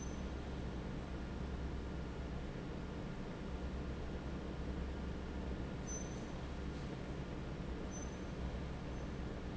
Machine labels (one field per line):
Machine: fan